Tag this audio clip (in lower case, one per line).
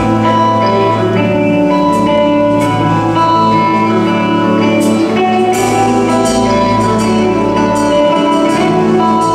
music